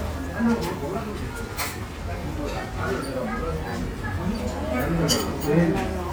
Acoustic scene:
restaurant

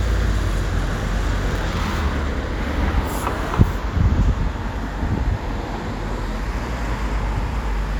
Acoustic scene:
street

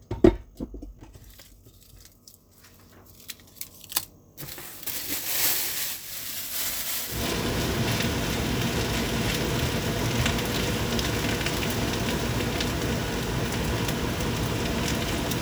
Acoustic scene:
kitchen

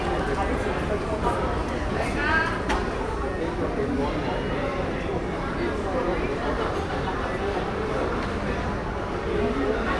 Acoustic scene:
crowded indoor space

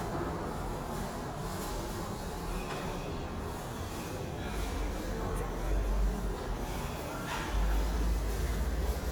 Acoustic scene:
subway station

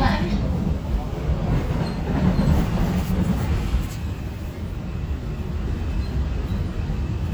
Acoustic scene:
subway train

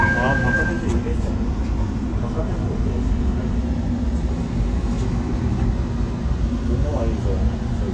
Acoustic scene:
subway train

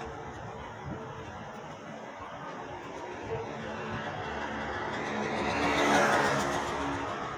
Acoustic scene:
residential area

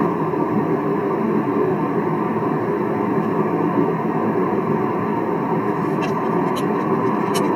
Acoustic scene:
car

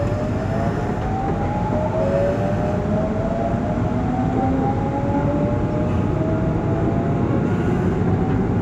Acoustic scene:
subway train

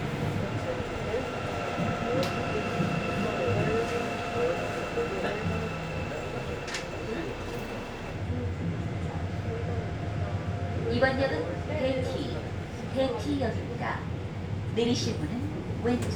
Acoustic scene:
subway train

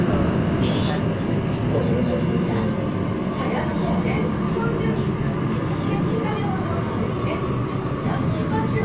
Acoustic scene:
subway train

